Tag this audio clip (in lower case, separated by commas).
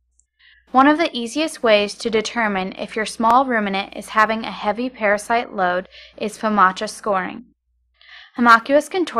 speech